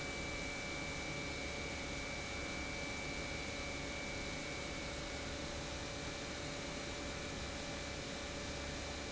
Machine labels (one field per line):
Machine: pump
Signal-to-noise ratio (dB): 0 dB